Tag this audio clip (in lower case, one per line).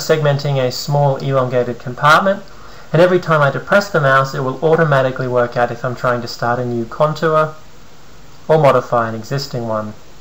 speech